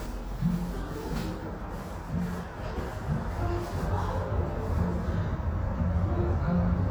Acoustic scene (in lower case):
cafe